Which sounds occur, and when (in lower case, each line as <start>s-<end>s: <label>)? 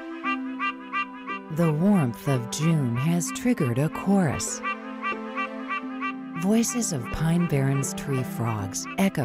0.0s-9.2s: music
0.2s-0.3s: animal
0.6s-0.7s: animal
0.9s-1.0s: animal
1.3s-1.4s: animal
1.5s-4.6s: woman speaking
1.6s-1.7s: animal
1.9s-2.0s: animal
2.2s-2.4s: animal
2.6s-2.7s: animal
2.9s-3.0s: animal
3.2s-3.4s: animal
3.6s-3.7s: animal
3.9s-4.0s: animal
4.3s-4.4s: animal
4.6s-4.8s: animal
5.0s-5.1s: animal
5.3s-5.5s: animal
5.7s-5.8s: animal
6.0s-6.1s: animal
6.3s-6.4s: animal
6.4s-9.2s: woman speaking
6.7s-6.8s: animal
7.0s-7.1s: animal
7.4s-7.5s: animal
7.7s-7.9s: animal
8.1s-8.2s: animal
8.4s-8.6s: animal
8.8s-9.0s: animal
9.2s-9.2s: animal